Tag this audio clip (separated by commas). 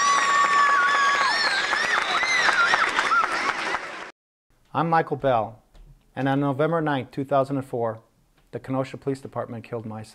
Speech